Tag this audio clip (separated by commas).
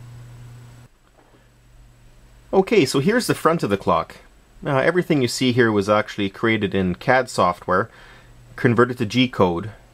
Speech